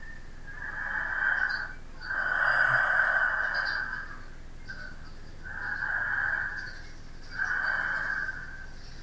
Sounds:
Breathing, Respiratory sounds

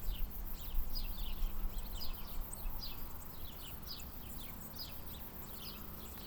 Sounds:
Cricket, Bird, Insect, Wild animals, Animal

